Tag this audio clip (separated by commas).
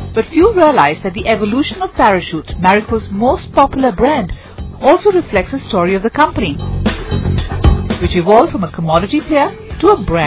Music, Speech